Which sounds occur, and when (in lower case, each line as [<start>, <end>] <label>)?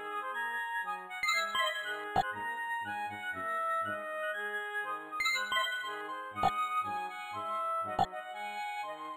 [0.00, 9.15] music
[2.13, 2.22] sound effect
[6.40, 6.49] sound effect
[7.96, 8.06] sound effect